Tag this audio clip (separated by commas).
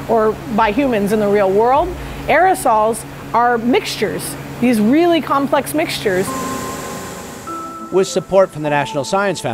Speech, Music